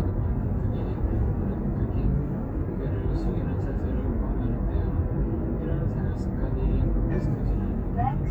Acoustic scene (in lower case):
car